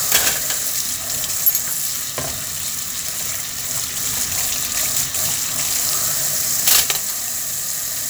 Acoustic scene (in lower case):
kitchen